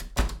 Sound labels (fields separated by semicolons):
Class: door; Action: closing; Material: wooden